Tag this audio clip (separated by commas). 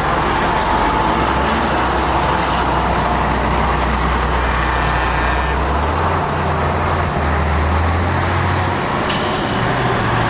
Vehicle, Air brake